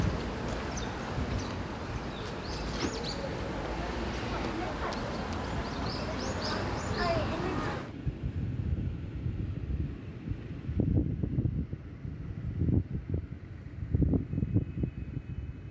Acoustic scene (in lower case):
residential area